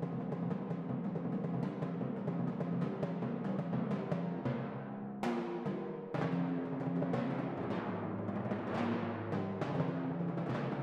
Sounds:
playing tympani

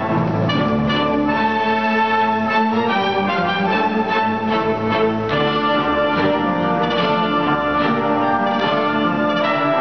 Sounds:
music, musical instrument, violin

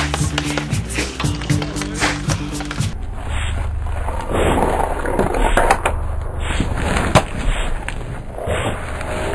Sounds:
thwack

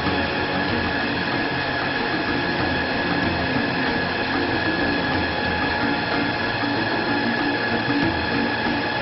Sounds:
lathe spinning

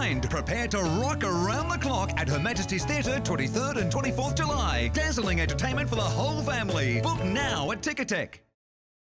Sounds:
speech, music

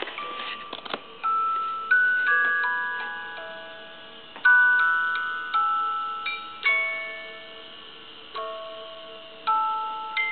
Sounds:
music

